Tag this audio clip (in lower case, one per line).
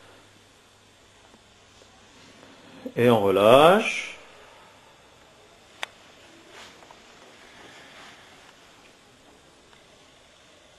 speech